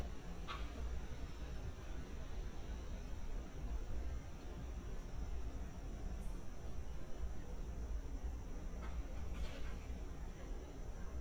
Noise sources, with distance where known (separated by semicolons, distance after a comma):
background noise